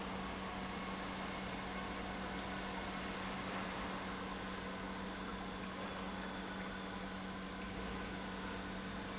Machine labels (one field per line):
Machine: pump